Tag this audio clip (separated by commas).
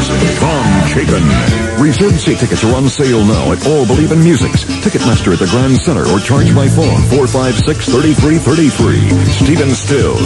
Speech, Music